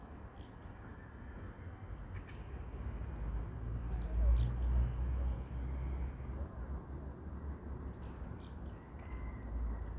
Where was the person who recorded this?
in a residential area